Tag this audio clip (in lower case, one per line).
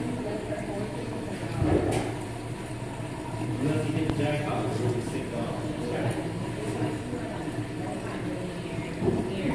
speech